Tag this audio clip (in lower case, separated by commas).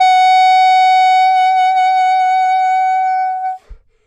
music, musical instrument, woodwind instrument